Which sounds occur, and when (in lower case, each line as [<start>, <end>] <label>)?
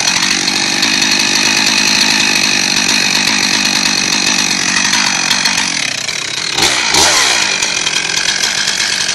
[0.00, 9.14] jackhammer